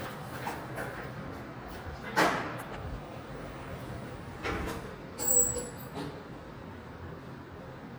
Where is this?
in an elevator